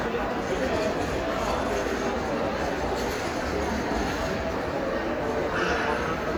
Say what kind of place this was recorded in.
crowded indoor space